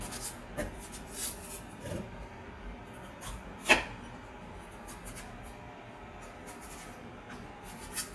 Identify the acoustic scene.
kitchen